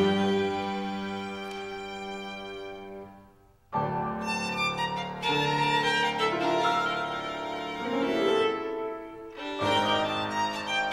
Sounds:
Music, fiddle, playing violin, Musical instrument

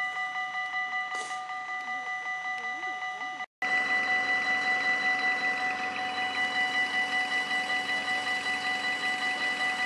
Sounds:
Vehicle

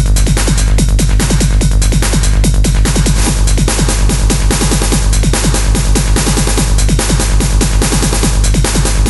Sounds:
Sound effect, Music

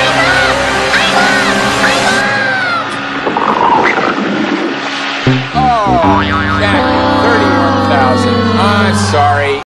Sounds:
Music, Speech, speech noise, Sound effect

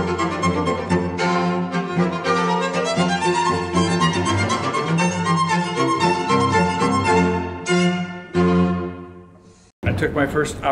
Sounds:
Music, Bowed string instrument

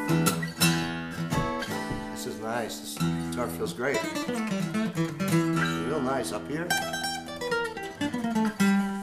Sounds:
Acoustic guitar, Music, Speech

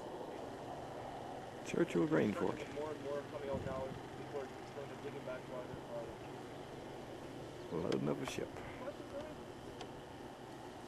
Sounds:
Speech

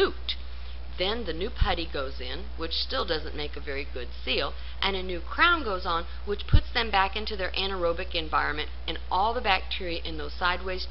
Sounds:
inside a small room, Speech

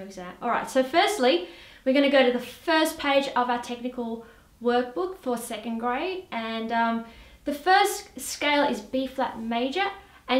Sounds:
Speech

